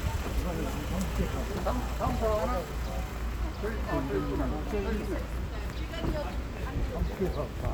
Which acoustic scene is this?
street